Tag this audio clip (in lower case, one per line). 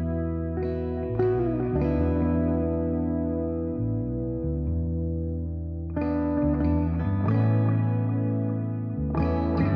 music